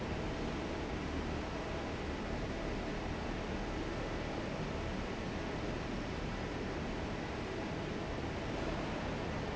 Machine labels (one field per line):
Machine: fan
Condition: normal